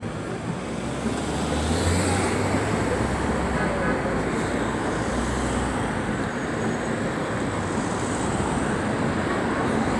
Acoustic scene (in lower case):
street